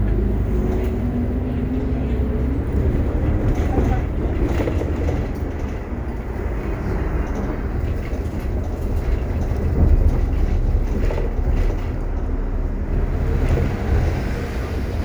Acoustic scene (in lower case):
bus